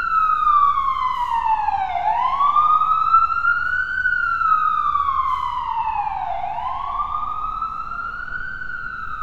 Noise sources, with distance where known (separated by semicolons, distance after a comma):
siren, near